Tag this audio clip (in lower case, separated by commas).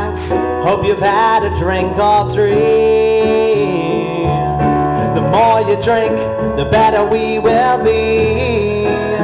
rhythm and blues, blues, music